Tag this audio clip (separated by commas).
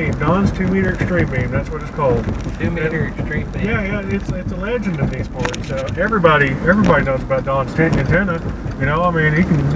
Vehicle, Speech